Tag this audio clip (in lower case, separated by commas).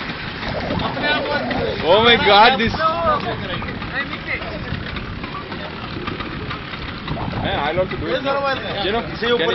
speech